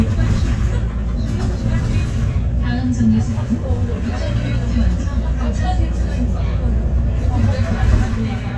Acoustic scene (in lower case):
bus